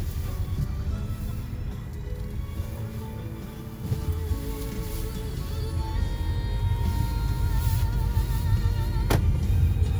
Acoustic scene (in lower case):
car